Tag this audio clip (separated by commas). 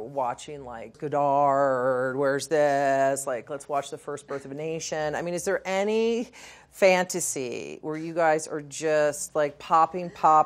woman speaking